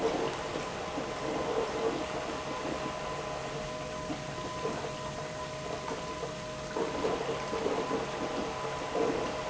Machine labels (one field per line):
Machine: pump